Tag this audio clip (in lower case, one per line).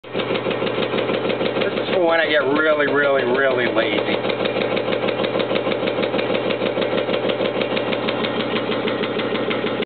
speech